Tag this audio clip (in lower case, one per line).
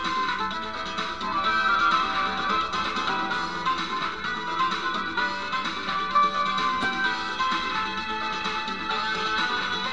theme music
music